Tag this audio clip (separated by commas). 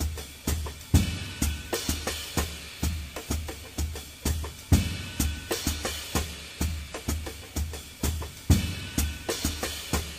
Music